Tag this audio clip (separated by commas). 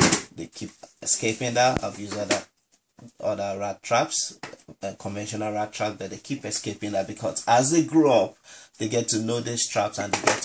Speech